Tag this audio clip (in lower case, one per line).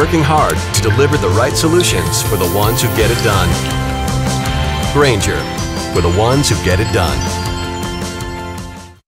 music
speech